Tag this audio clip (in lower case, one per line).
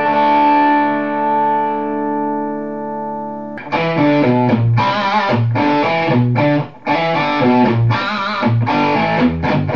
guitar
musical instrument
music
strum
plucked string instrument